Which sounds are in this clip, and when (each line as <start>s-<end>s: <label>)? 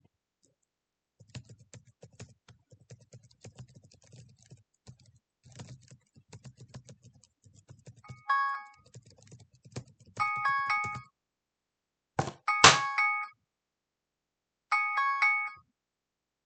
0.4s-11.1s: keyboard typing
8.1s-8.7s: phone ringing
10.2s-11.0s: phone ringing
12.5s-13.3s: phone ringing
14.7s-15.6s: phone ringing